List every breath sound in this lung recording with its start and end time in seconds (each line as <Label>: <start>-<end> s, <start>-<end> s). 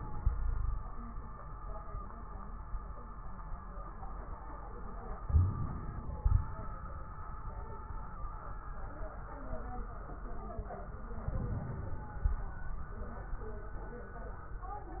Inhalation: 5.25-6.70 s, 11.27-12.61 s
Wheeze: 5.25-5.61 s
Crackles: 11.27-12.61 s